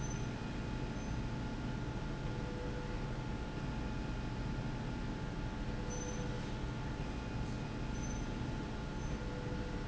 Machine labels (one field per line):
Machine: slide rail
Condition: normal